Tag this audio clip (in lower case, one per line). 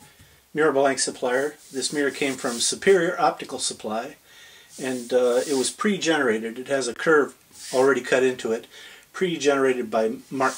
speech